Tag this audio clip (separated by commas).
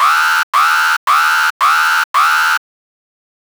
Alarm